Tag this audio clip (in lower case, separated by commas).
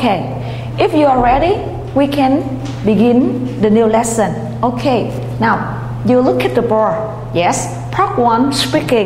speech